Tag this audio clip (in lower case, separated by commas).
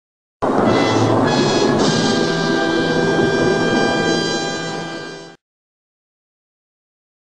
music